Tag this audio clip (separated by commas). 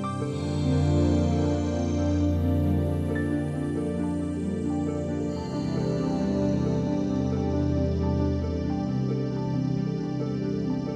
New-age music, Music